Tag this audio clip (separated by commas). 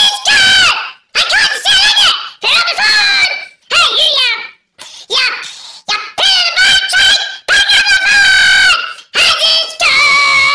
Speech